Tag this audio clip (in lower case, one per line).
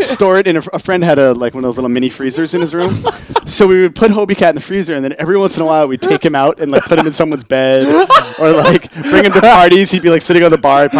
speech